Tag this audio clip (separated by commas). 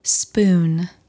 Human voice, woman speaking, Speech